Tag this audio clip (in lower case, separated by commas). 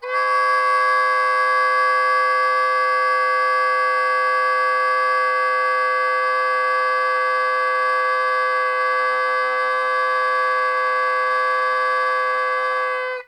wind instrument, musical instrument, music